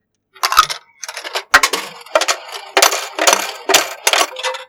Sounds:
coin (dropping)
home sounds

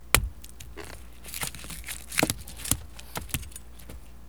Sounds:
chink
glass
domestic sounds

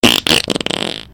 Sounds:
fart

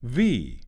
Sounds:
speech
human voice
male speech

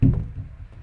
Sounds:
cupboard open or close
domestic sounds

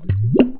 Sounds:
liquid

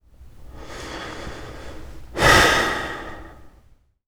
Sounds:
respiratory sounds
breathing

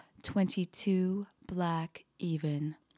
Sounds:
speech
human voice
woman speaking

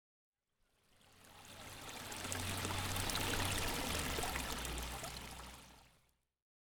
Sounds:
liquid

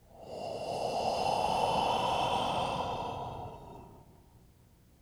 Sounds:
respiratory sounds
breathing

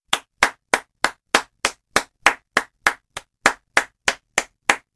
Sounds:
hands
clapping

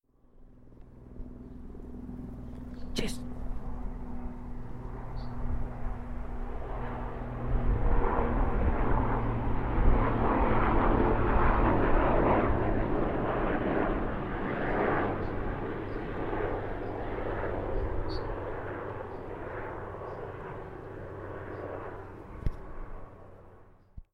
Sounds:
aircraft
vehicle

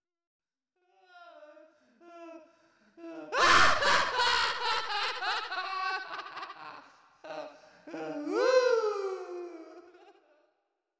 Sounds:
human voice
laughter

